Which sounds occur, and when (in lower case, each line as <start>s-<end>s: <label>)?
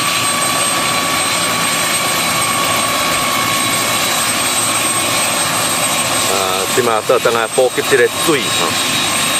0.0s-9.3s: helicopter
6.3s-8.7s: male speech